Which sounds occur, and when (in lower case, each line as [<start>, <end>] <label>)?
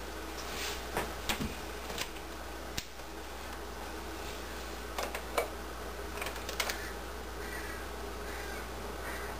[0.00, 9.35] mechanisms
[0.30, 0.46] generic impact sounds
[0.43, 0.82] surface contact
[0.92, 1.06] generic impact sounds
[1.24, 1.47] generic impact sounds
[1.76, 2.12] generic impact sounds
[2.72, 2.82] tick
[3.47, 3.57] tick
[4.90, 5.16] generic impact sounds
[5.33, 5.46] generic impact sounds
[6.13, 6.81] generic impact sounds
[6.63, 6.97] caw
[7.40, 7.87] caw
[8.16, 8.60] caw
[8.94, 9.26] caw